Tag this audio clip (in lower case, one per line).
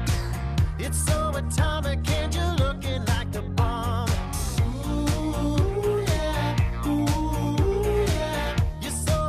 music